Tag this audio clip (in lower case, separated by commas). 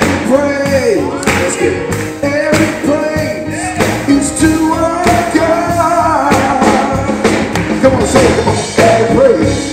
music, jazz